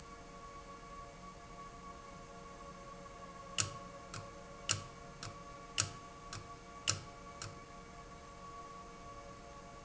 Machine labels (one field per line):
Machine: valve